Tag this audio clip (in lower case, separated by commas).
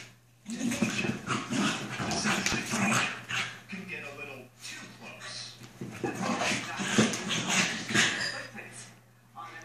dog, speech, growling, animal, domestic animals, canids